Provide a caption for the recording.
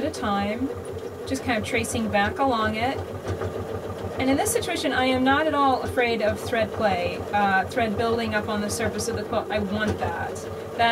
A person talks as a sewing machine sews several times